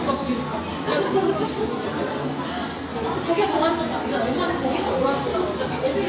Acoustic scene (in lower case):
cafe